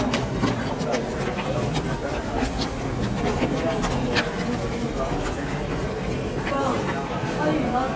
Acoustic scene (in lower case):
subway station